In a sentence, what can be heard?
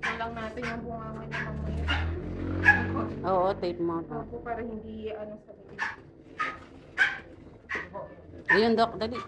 Dogs barking and people chatting about it